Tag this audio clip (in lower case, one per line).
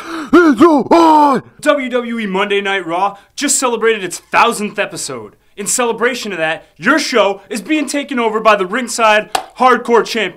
speech
inside a small room